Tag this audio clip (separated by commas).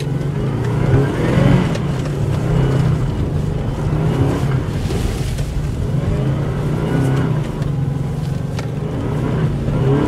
Vehicle, Car